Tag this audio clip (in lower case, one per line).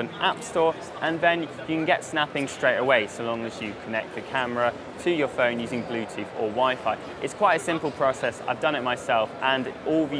speech